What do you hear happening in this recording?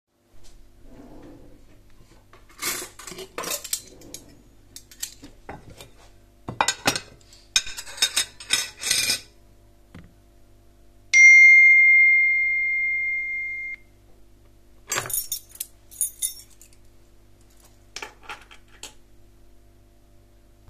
I open the drawer, take the dished, put them in some place, receiving a notification while I carry the dishes